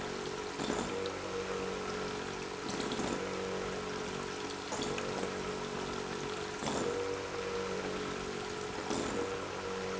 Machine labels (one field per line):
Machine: pump